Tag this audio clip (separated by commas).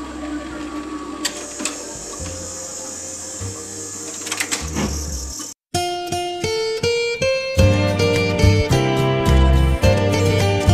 Music, inside a small room